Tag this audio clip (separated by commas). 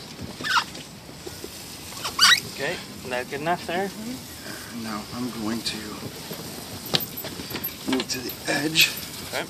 Speech